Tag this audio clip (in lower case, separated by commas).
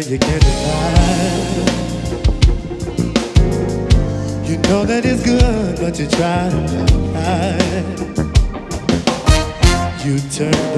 speech, music